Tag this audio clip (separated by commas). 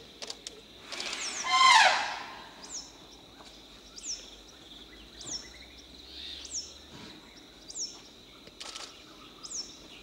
Environmental noise, Animal, bird song